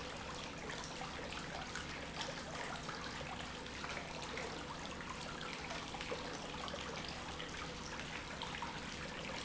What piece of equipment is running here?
pump